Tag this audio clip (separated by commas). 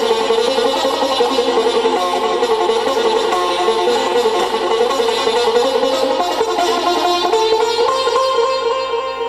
playing sitar